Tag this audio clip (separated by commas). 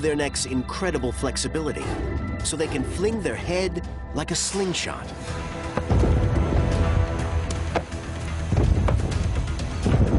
alligators